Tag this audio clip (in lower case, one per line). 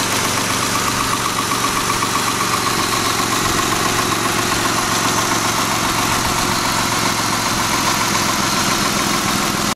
vehicle
idling
engine